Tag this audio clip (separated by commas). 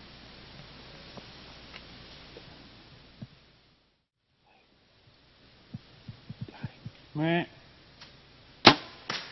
Speech